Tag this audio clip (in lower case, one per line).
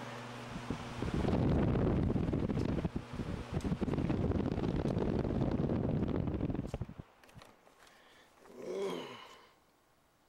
mechanical fan